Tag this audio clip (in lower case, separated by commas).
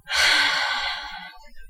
human voice, sigh